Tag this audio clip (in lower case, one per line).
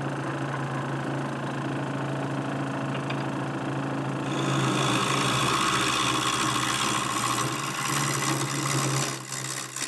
tools
wood